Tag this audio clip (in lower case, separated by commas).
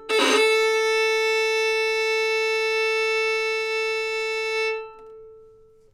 musical instrument, music, bowed string instrument